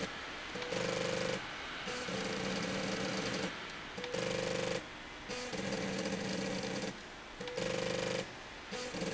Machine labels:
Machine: slide rail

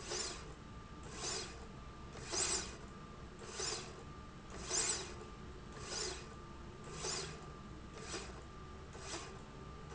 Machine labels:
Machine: slide rail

